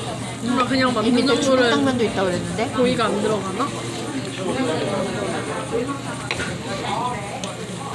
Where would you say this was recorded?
in a crowded indoor space